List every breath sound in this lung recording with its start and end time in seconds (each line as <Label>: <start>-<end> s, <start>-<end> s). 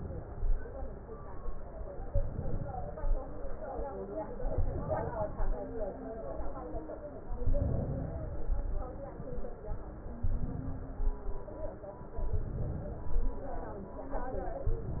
Inhalation: 2.07-3.19 s, 4.43-5.55 s, 7.39-8.51 s, 10.20-11.15 s, 12.20-13.34 s, 14.69-15.00 s